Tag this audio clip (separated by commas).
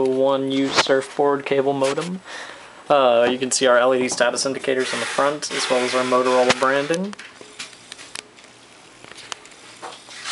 Speech